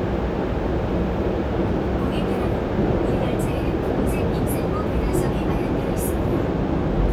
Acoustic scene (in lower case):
subway train